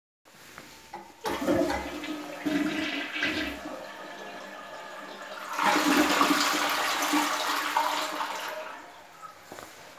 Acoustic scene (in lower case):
restroom